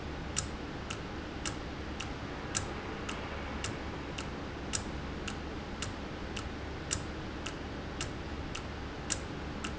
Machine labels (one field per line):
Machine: valve